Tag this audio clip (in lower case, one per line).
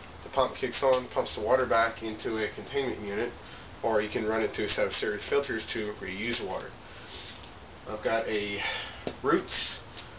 speech